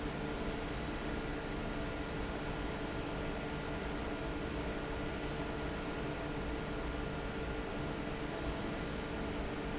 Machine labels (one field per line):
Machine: fan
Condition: normal